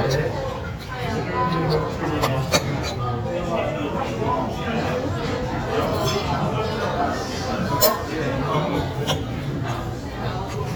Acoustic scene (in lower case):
restaurant